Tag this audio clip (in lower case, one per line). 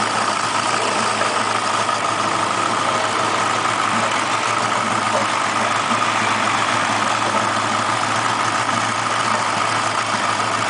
engine